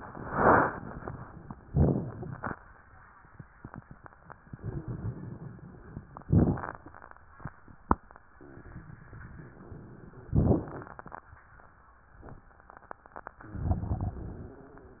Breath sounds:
Inhalation: 0.03-1.64 s, 4.52-6.23 s, 8.30-10.33 s, 13.11-14.57 s
Exhalation: 1.63-2.74 s, 6.23-8.27 s, 10.32-12.66 s
Wheeze: 4.52-5.80 s
Crackles: 1.63-2.74 s, 6.23-8.27 s, 8.29-10.31 s, 10.32-12.66 s, 13.11-14.57 s

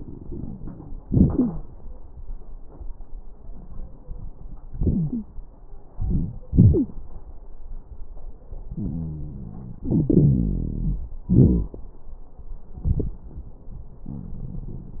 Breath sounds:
Inhalation: 0.00-0.98 s, 5.91-6.43 s, 9.84-11.26 s
Exhalation: 0.99-1.66 s, 6.50-7.02 s, 11.25-11.73 s
Wheeze: 1.27-1.63 s, 4.74-5.26 s, 6.50-6.89 s, 8.76-9.81 s, 9.84-11.26 s, 11.28-11.73 s
Crackles: 0.00-0.98 s, 5.91-6.43 s

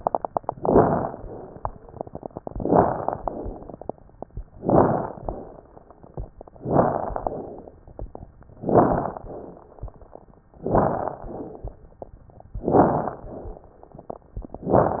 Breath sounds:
Inhalation: 0.57-1.14 s, 2.54-3.18 s, 4.59-5.23 s, 6.58-7.32 s, 8.58-9.25 s, 10.66-11.19 s, 12.71-13.24 s, 14.61-15.00 s
Exhalation: 1.20-1.73 s, 3.21-3.84 s, 5.24-5.76 s, 7.36-7.77 s, 9.30-9.71 s, 11.25-11.77 s, 13.26-13.79 s
Crackles: 0.57-1.14 s, 1.20-1.73 s, 2.54-3.18 s, 3.21-3.84 s, 4.59-5.23 s, 5.24-5.76 s, 6.58-7.32 s, 7.36-7.77 s, 8.58-9.25 s, 9.30-9.71 s, 10.66-11.19 s, 11.25-11.77 s, 12.71-13.24 s, 13.26-13.79 s, 14.61-15.00 s

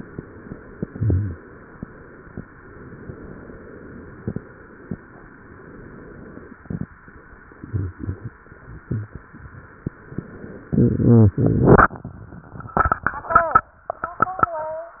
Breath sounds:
Inhalation: 2.56-4.14 s, 5.18-6.77 s
Exhalation: 4.18-5.10 s, 6.77-10.63 s

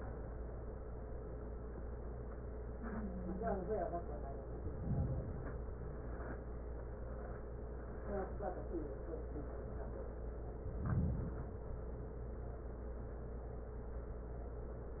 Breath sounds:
Inhalation: 4.53-5.88 s, 10.54-11.89 s

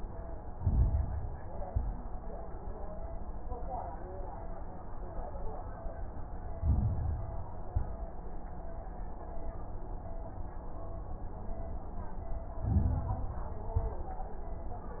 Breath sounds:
Inhalation: 0.51-1.55 s, 6.55-7.60 s, 12.58-13.62 s
Exhalation: 1.58-2.20 s, 7.66-8.28 s, 13.76-14.38 s
Crackles: 0.51-1.55 s, 1.58-2.20 s, 6.55-7.60 s, 7.66-8.28 s, 12.58-13.62 s, 13.76-14.38 s

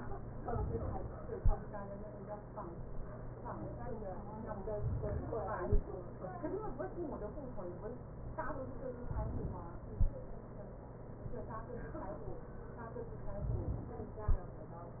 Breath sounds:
Inhalation: 4.71-5.70 s, 9.10-9.93 s, 13.40-14.22 s

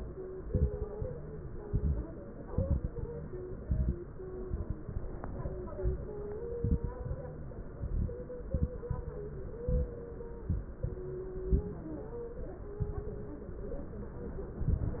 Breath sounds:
Inhalation: 0.40-0.83 s, 1.61-2.07 s, 2.49-3.06 s, 3.59-4.01 s, 6.55-6.97 s, 7.79-8.23 s, 9.65-9.97 s, 10.45-11.06 s, 12.79-13.32 s
Exhalation: 0.93-1.57 s, 7.01-7.67 s, 8.89-9.46 s, 11.38-11.91 s, 14.61-15.00 s
Crackles: 0.40-0.83 s, 1.61-2.07 s, 2.49-3.06 s, 3.59-4.01 s, 6.55-6.97 s, 7.79-8.23 s, 9.65-9.97 s, 10.45-11.06 s, 11.38-11.91 s, 12.79-13.32 s

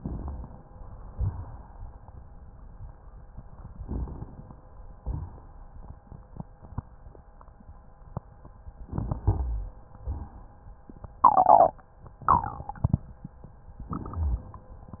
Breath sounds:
Inhalation: 3.82-4.59 s, 8.85-9.79 s
Exhalation: 1.15-1.91 s, 5.01-5.69 s, 10.03-10.57 s
Rhonchi: 8.85-9.79 s
Crackles: 3.82-4.59 s

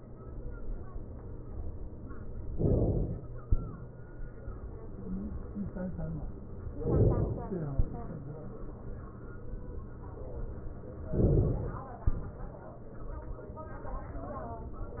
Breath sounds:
Inhalation: 2.54-3.42 s, 6.77-7.79 s, 11.09-12.00 s
Exhalation: 3.42-4.80 s, 7.79-9.23 s, 12.00-13.29 s

